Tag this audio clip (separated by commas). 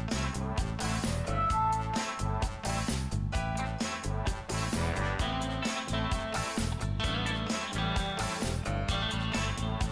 Music